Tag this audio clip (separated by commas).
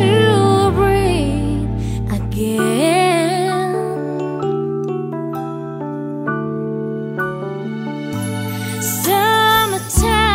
Music, Lullaby